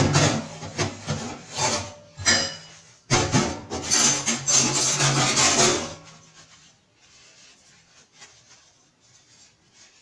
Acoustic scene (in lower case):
kitchen